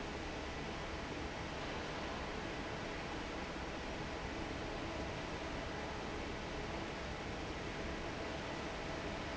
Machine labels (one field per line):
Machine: fan